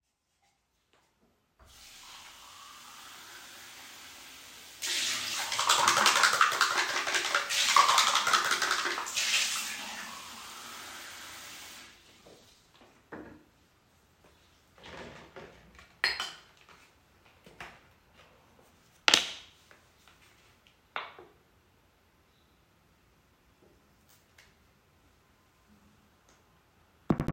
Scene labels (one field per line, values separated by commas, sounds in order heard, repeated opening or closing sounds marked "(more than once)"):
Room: lavatory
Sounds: running water